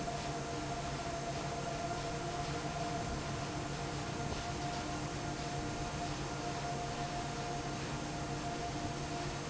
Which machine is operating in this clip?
fan